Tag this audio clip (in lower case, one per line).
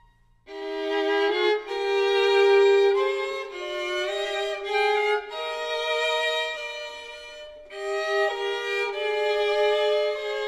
fiddle
music
musical instrument